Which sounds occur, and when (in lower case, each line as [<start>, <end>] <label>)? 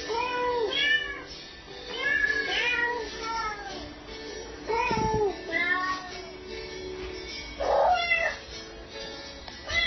[0.00, 9.85] music
[0.12, 1.33] meow
[1.92, 3.09] meow
[3.12, 3.78] child speech
[4.69, 5.34] meow
[4.89, 5.28] generic impact sounds
[5.47, 6.22] meow
[7.61, 8.39] cat
[9.45, 9.59] generic impact sounds
[9.69, 9.85] meow